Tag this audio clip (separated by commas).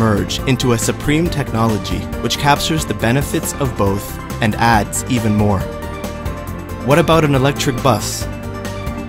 Speech, Music